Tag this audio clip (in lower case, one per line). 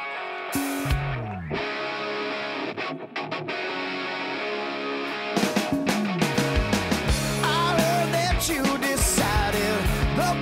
music